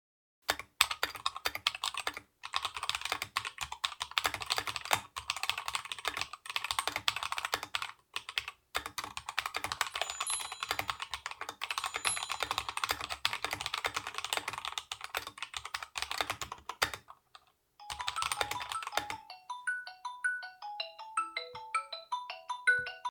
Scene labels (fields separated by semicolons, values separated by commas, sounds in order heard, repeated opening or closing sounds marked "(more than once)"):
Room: bedroom; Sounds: keyboard typing, phone ringing